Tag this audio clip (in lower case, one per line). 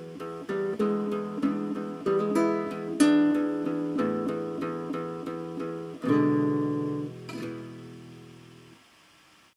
musical instrument
plucked string instrument
music
guitar
strum